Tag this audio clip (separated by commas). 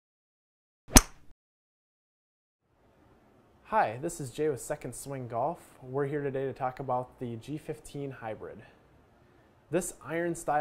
Speech